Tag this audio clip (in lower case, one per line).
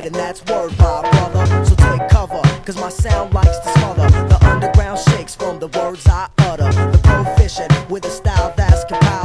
music